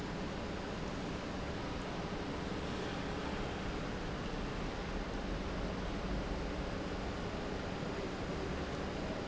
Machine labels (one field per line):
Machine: pump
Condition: normal